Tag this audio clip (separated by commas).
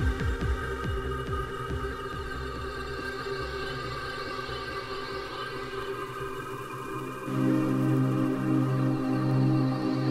Trance music, Music